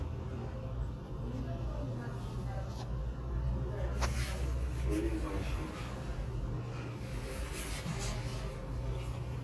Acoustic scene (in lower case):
crowded indoor space